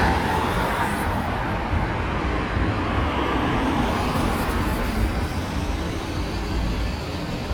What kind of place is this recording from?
street